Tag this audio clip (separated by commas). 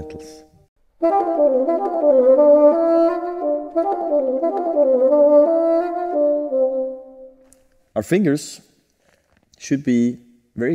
playing bassoon